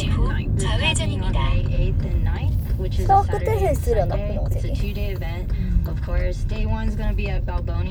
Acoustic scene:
car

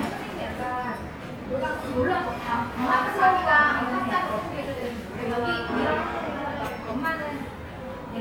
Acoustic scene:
restaurant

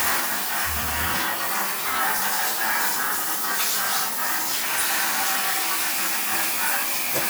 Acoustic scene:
restroom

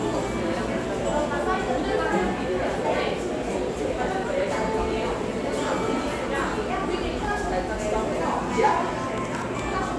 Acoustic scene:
cafe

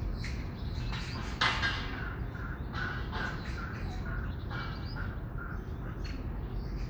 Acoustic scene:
park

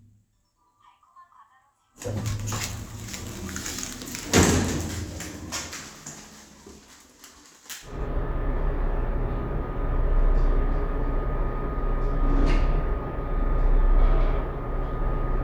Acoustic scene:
elevator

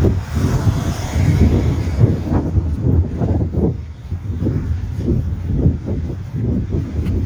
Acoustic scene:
residential area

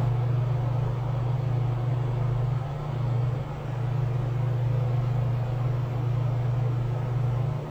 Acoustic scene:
elevator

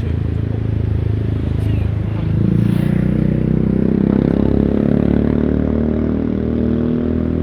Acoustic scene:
street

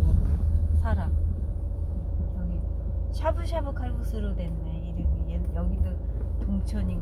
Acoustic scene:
car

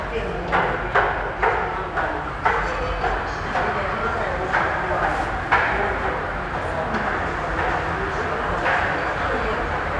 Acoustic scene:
subway station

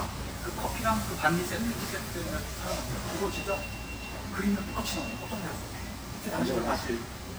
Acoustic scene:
restaurant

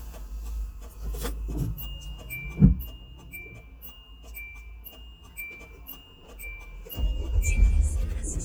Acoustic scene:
car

